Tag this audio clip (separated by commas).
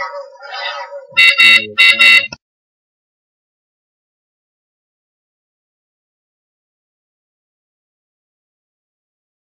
Speech